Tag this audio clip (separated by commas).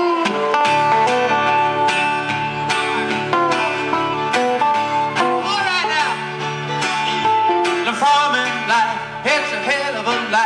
Music